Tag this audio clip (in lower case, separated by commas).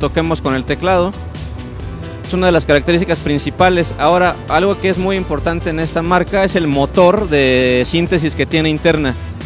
music, speech